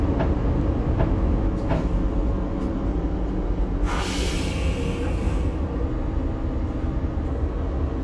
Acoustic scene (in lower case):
bus